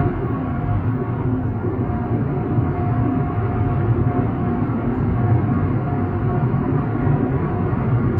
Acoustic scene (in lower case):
car